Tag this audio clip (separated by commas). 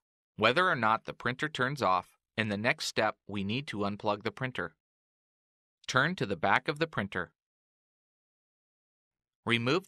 Speech